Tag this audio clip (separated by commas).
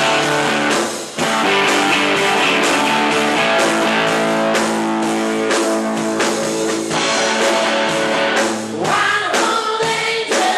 Music